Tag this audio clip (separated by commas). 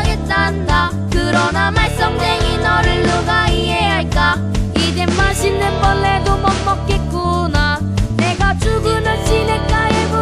Music